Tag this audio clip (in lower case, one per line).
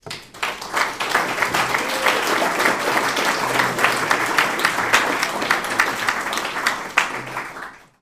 cheering
applause
human group actions